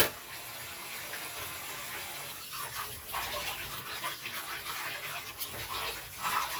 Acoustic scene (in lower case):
kitchen